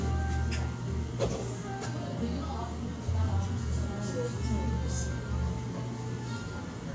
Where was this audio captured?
in a cafe